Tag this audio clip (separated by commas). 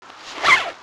Zipper (clothing), Domestic sounds